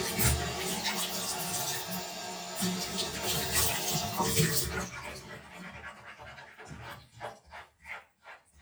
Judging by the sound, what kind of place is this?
restroom